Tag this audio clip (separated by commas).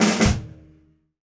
Drum, Percussion, Musical instrument, Snare drum, Music